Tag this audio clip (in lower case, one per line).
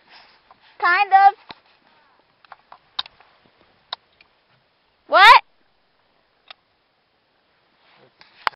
speech